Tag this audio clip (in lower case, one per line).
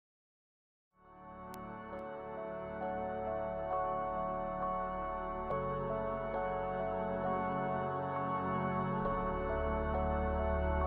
new-age music